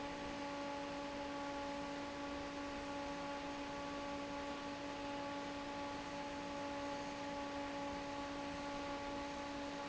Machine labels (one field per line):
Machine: fan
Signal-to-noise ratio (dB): 6 dB